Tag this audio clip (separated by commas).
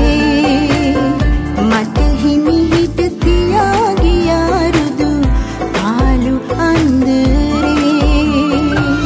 Music